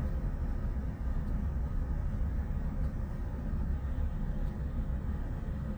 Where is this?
in a car